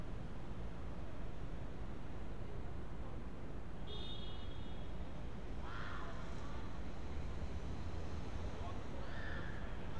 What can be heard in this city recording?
car horn, unidentified human voice